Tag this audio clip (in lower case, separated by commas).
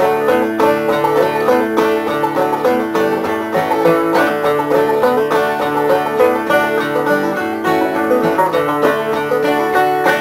music